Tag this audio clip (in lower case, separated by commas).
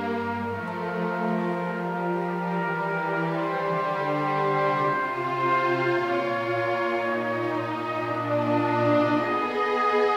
musical instrument, violin, music